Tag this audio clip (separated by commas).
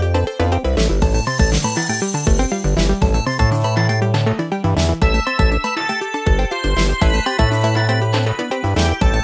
Music